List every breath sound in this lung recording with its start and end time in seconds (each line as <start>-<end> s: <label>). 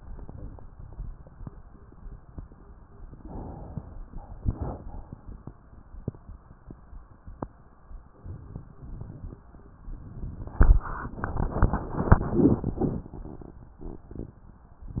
3.13-4.02 s: inhalation
4.17-4.92 s: exhalation